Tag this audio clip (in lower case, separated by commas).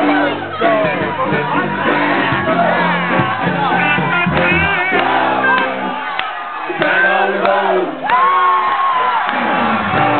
speech, music